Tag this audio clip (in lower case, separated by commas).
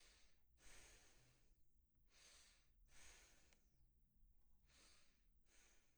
respiratory sounds, breathing